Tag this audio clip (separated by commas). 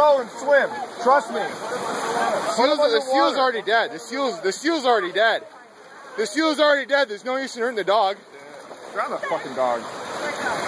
Speech